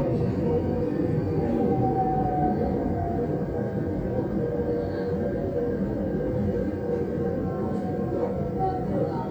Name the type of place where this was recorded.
subway train